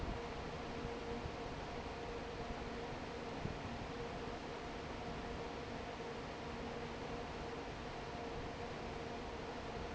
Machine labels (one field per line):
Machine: fan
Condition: normal